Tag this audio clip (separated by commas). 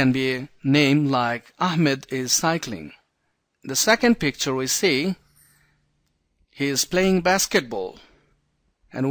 Narration, Speech